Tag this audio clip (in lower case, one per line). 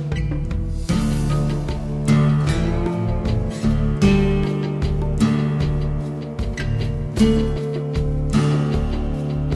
acoustic guitar
musical instrument
playing acoustic guitar
guitar
strum
music
plucked string instrument